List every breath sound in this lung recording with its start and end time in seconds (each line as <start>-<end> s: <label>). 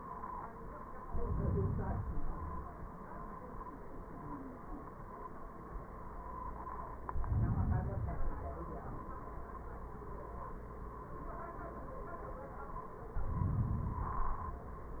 1.01-2.82 s: inhalation
7.11-8.92 s: inhalation
12.96-14.77 s: inhalation